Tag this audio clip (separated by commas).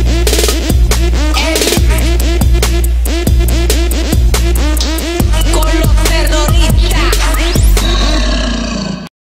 Animal, Music